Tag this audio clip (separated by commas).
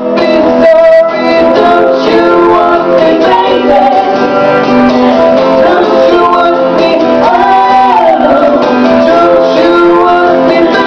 Music, Female singing, Male singing